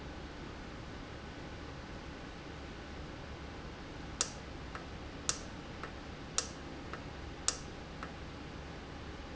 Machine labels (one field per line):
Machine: valve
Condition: normal